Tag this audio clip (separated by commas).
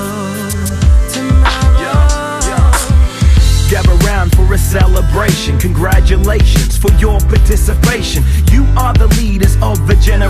Music